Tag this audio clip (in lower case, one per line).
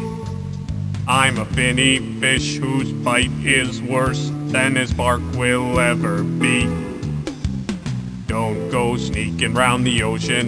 music